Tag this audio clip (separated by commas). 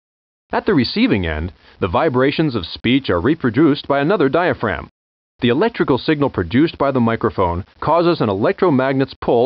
Speech